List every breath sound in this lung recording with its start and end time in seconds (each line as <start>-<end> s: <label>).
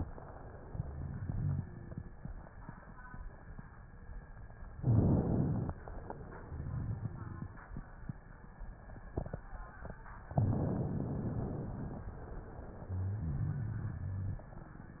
4.76-5.76 s: inhalation
6.42-7.51 s: exhalation
6.42-7.51 s: rhonchi
10.40-12.07 s: inhalation
13.23-14.46 s: exhalation
13.23-14.46 s: rhonchi